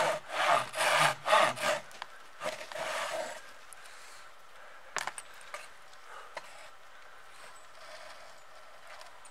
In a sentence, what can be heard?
Someone uses a manual saw on wood